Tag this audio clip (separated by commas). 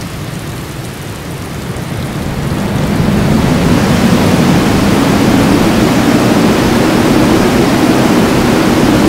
Rain on surface, Rain